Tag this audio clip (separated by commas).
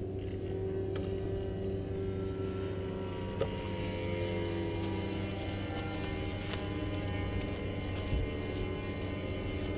Vibration